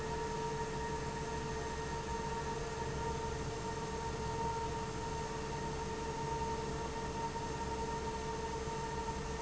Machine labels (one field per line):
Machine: fan